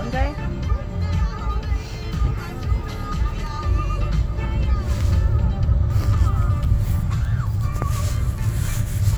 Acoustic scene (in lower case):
car